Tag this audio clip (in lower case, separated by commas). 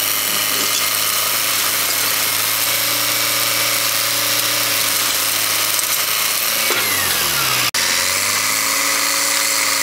vehicle